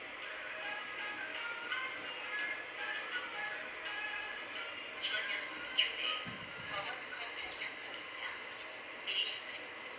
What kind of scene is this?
subway train